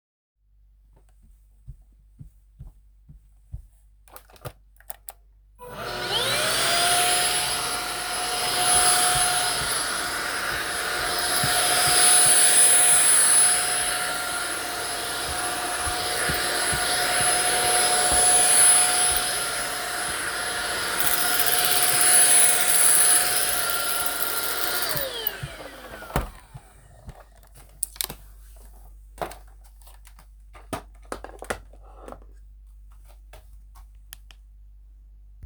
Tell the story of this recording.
Vacuum cleaner operating while footsteps occur nearby.